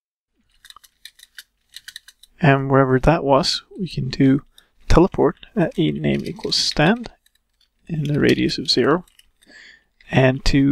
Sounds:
speech

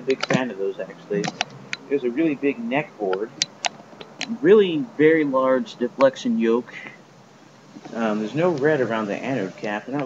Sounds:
speech

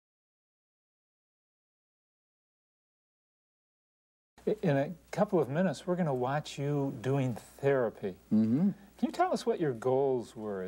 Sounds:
conversation, speech

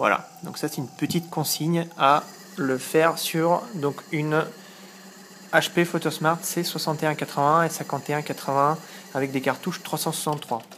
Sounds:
speech

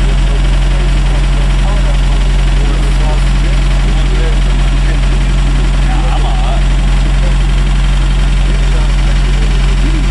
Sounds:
speech

